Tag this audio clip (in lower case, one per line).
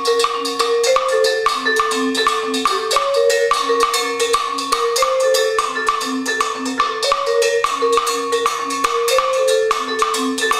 percussion
music